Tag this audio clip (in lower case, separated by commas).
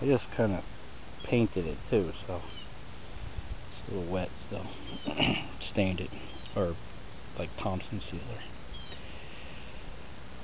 speech